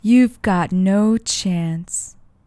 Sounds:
human voice
speech
woman speaking

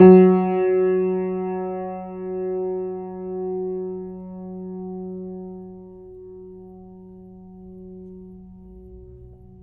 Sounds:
piano
music
musical instrument
keyboard (musical)

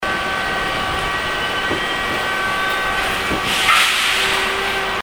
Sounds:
rail transport
subway
vehicle

